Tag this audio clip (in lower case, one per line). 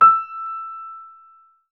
musical instrument
music
keyboard (musical)
piano